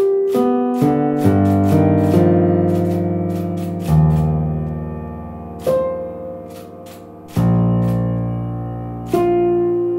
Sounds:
music
electric piano

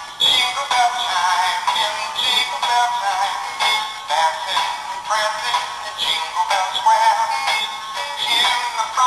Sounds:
music

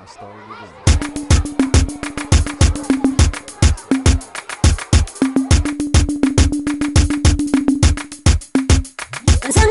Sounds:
music
afrobeat

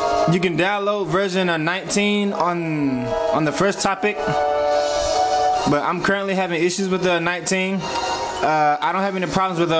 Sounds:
music
speech
inside a small room

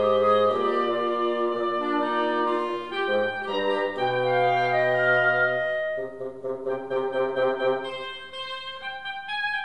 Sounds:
playing oboe

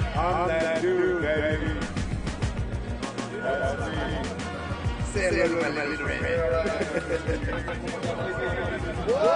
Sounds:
music
speech

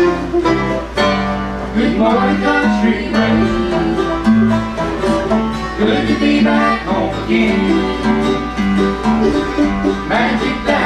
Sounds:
music

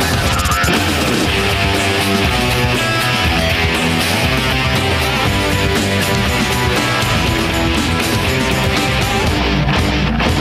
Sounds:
music

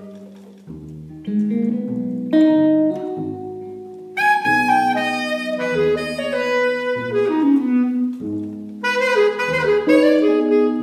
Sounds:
playing clarinet

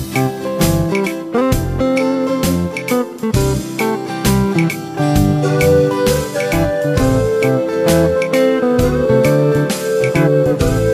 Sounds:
music

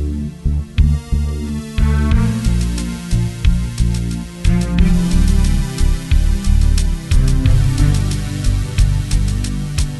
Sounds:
music

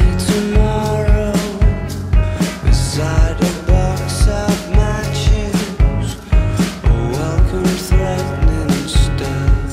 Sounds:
music
grunge

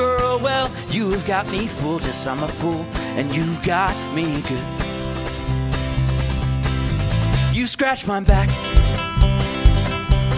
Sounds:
music
sound effect

